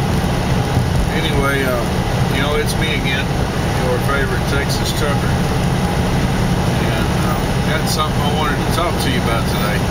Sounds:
Speech, Vehicle

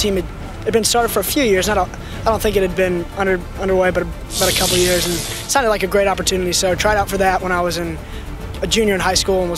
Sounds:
Speech, Music

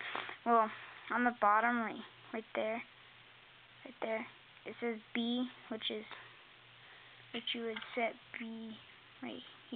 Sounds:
Speech

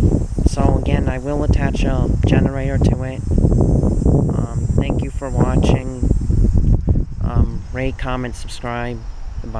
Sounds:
Wind

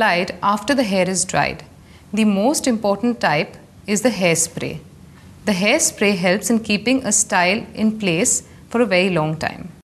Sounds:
Speech

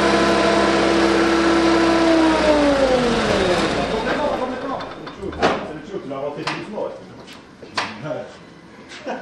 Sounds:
Vehicle, Medium engine (mid frequency), Speech, Car, Engine

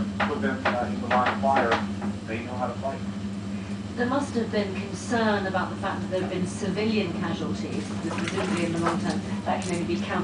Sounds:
Speech

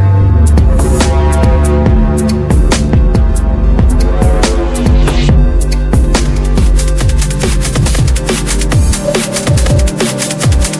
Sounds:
Music, Drum and bass

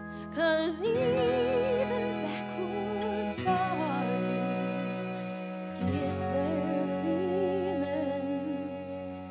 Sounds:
Music, Singing

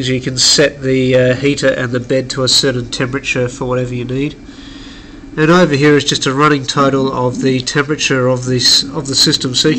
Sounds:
Speech

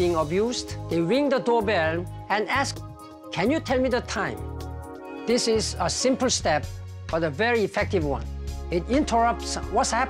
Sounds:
Music, Speech

